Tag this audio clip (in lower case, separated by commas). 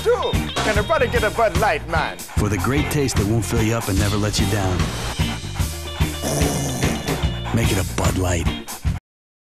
animal, speech, music, dog, domestic animals